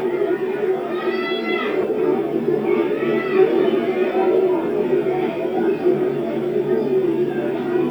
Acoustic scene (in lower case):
park